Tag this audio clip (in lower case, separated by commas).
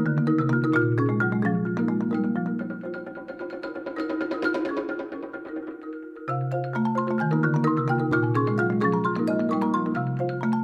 musical instrument, music, playing marimba, xylophone